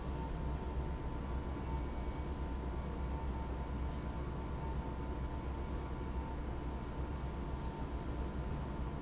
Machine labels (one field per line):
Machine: pump